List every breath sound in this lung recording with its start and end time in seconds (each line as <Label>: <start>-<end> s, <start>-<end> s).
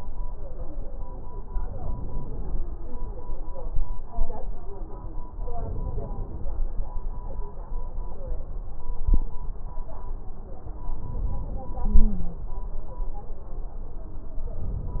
Inhalation: 1.48-2.68 s, 5.49-6.55 s, 11.01-12.45 s
Stridor: 11.86-12.45 s